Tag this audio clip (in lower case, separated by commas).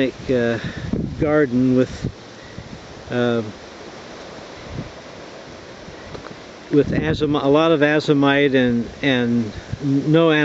speech, outside, rural or natural